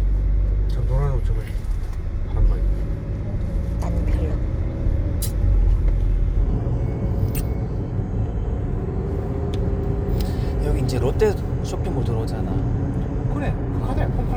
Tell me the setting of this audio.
car